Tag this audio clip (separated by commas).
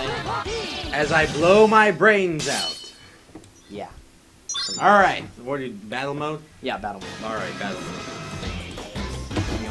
Video game music, Music, Speech